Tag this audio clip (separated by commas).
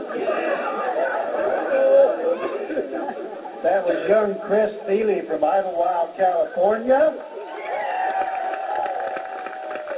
Speech